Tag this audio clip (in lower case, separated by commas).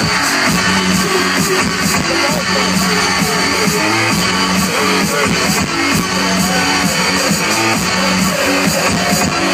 speech, music